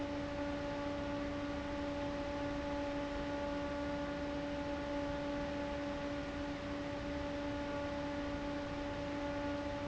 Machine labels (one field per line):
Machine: fan